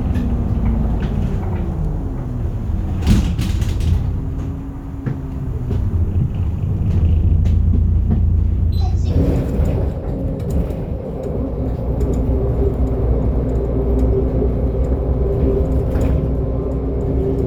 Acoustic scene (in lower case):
bus